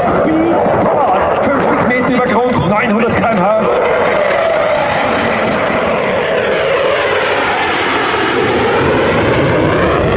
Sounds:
airplane flyby

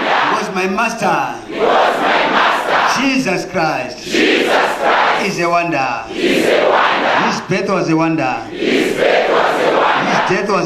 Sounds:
Speech

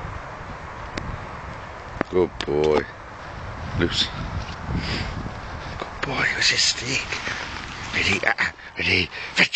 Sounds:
Speech

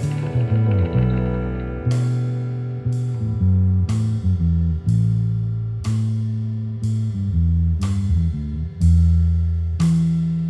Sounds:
Music

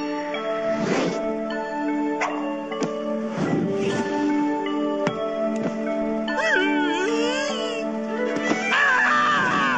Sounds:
Music

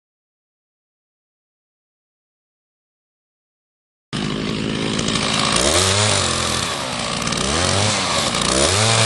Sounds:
Chainsaw

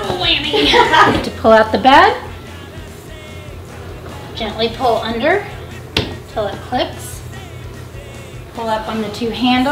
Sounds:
Music, Speech

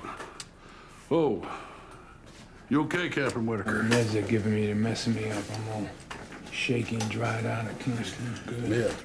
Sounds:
Speech

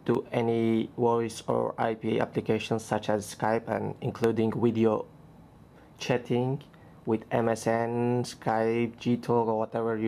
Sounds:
Speech

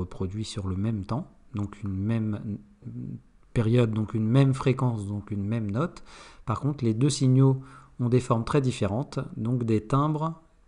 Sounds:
reversing beeps

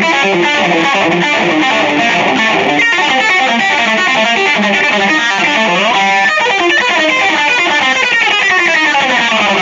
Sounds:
Strum, Music, Guitar, Musical instrument, Acoustic guitar, Electric guitar, Plucked string instrument

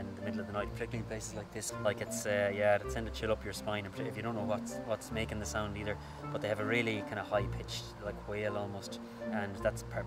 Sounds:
Speech, Music

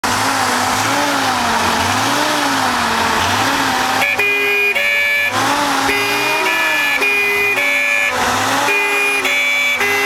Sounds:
Ambulance (siren), Accelerating, Vehicle

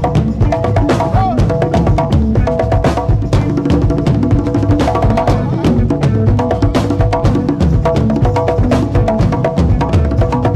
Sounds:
Music, Exciting music, Speech

